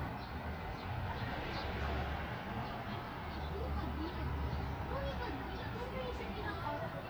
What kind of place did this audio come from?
residential area